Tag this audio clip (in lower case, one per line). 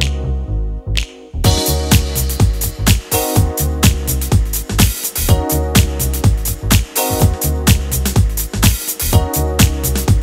music